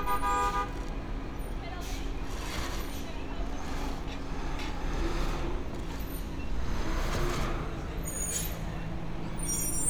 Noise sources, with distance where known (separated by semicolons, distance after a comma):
engine of unclear size; car horn, near; person or small group talking